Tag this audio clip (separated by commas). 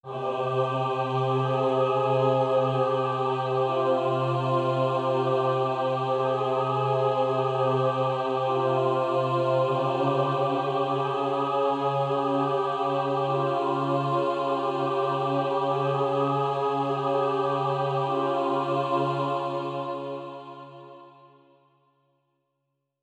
Human voice, Music, Musical instrument, Singing